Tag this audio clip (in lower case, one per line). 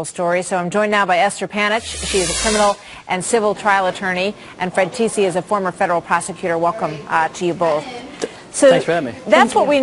speech
man speaking
conversation
woman speaking
narration